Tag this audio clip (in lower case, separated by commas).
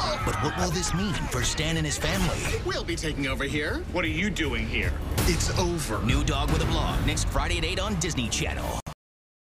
music, speech